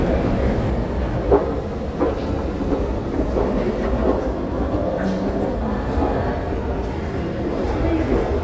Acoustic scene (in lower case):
subway station